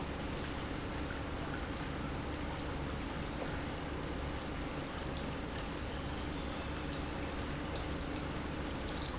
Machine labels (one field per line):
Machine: pump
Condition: normal